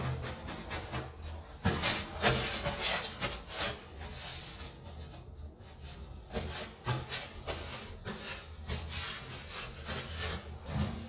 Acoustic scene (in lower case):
restroom